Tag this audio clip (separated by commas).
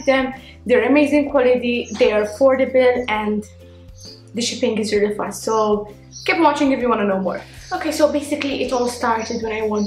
Speech, Music